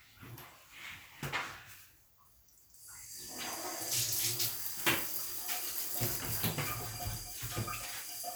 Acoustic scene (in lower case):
restroom